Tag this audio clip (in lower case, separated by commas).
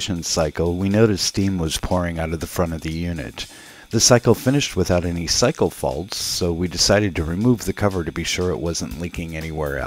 speech, music